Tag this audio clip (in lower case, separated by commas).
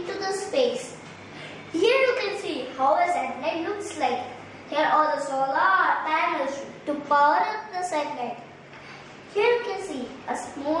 kid speaking